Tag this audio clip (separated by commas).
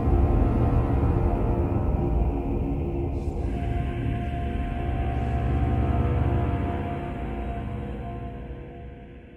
Scary music, Music